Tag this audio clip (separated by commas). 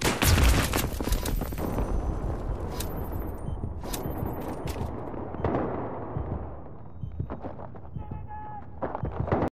Speech